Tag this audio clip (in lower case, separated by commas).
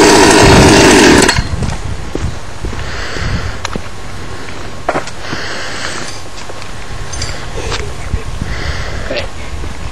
speech, outside, rural or natural